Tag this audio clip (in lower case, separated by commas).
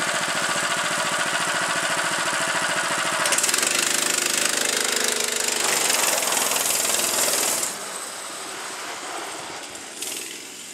vehicle